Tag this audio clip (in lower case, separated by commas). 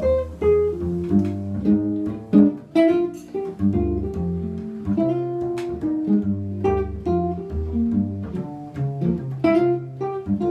music, double bass